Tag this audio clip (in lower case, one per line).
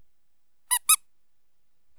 squeak